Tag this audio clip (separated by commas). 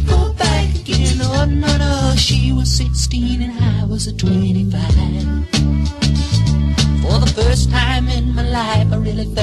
Music